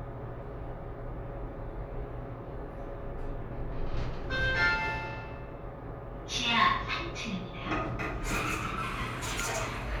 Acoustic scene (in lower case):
elevator